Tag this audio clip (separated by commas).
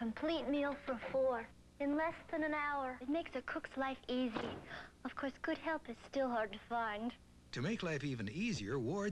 Speech